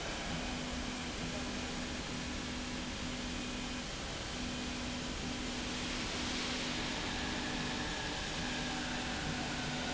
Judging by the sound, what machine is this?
slide rail